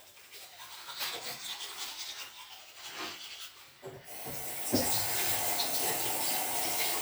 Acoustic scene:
restroom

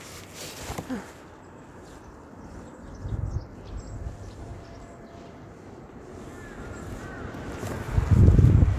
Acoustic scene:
residential area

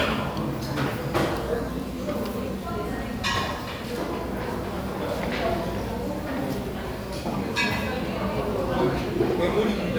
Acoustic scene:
crowded indoor space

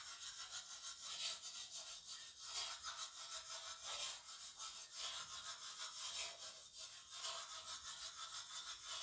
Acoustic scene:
restroom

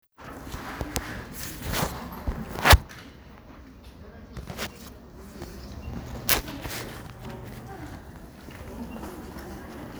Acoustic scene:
crowded indoor space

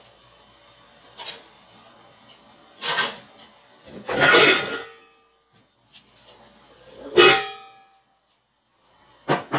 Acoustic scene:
kitchen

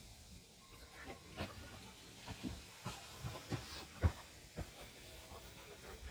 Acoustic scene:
park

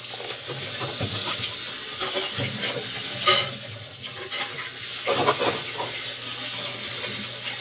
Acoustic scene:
kitchen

